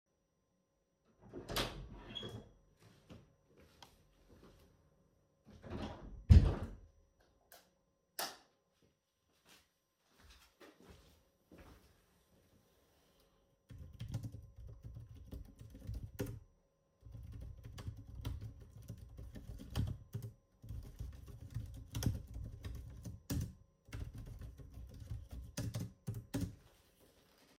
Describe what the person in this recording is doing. I walked into the room and turned on the light. I sat down at my desk and began typing heavily on the keyboard.